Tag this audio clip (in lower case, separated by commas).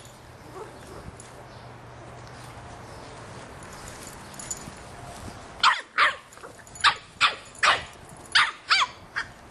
canids, dog bow-wow, animal, bow-wow, bark, dog, pets